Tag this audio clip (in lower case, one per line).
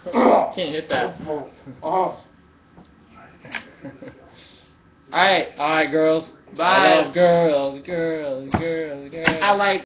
speech